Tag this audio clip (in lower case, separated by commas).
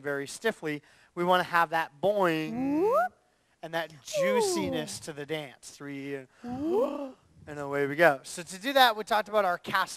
speech